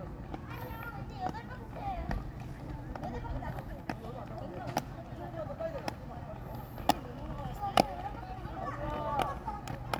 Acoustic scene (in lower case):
park